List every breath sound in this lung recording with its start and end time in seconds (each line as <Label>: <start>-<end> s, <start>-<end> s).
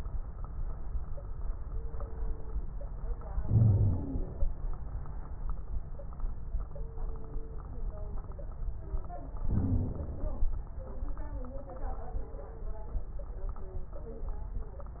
Inhalation: 3.44-4.49 s, 9.49-10.50 s
Wheeze: 3.44-4.18 s
Crackles: 9.49-10.50 s